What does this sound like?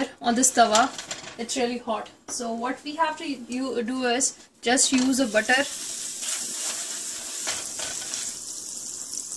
An adult female is speaking and a sizzling sound occurs